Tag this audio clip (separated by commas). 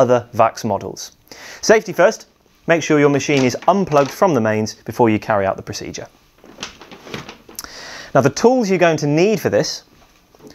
Speech